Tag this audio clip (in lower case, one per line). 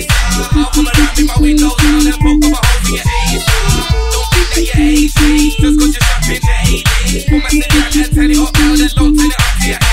music